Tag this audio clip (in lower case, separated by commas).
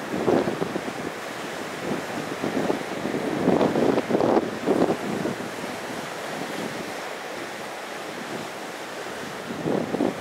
wind, ocean, ocean burbling, waves, wind noise (microphone)